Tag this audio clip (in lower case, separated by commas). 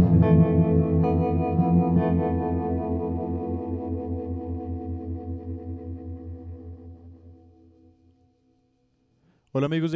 speech, music